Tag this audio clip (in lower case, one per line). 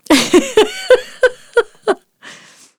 laughter
human voice
giggle